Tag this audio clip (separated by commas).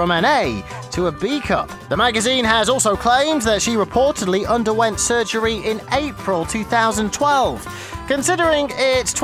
Music, Speech